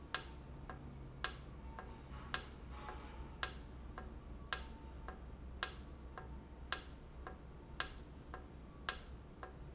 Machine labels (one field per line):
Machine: valve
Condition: normal